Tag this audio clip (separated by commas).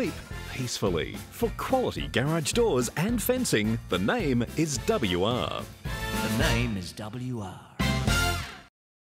Speech, Music